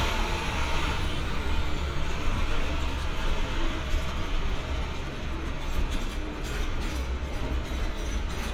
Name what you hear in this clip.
large-sounding engine, unidentified impact machinery